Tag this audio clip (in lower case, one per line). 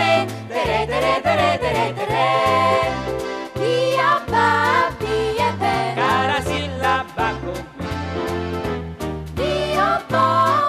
music